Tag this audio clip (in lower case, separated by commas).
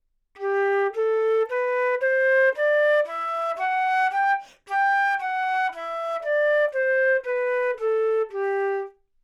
wind instrument, musical instrument, music